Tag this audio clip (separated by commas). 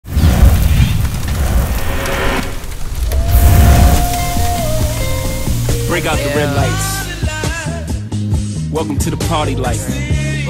Speech, Music